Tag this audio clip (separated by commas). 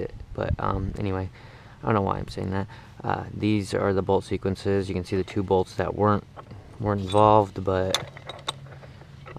Speech